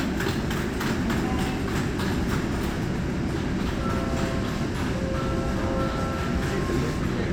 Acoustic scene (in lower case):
subway train